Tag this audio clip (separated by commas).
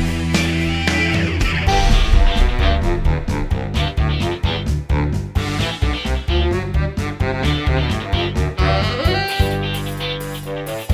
Soundtrack music, Music